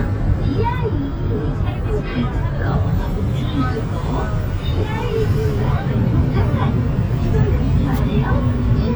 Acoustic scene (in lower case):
bus